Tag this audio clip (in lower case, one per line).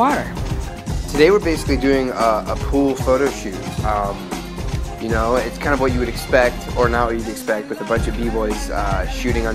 music
speech